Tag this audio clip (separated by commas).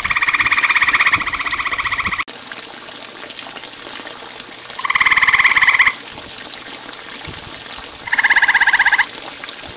frog croaking